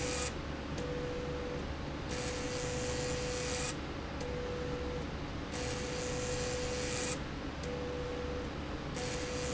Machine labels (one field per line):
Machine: slide rail